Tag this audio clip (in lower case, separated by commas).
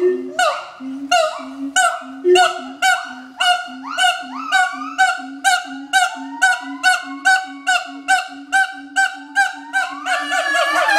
gibbon howling